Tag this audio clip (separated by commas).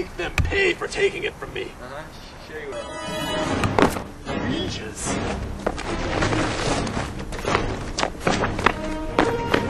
Music, Speech